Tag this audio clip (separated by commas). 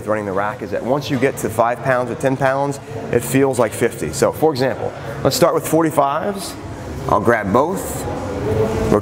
Speech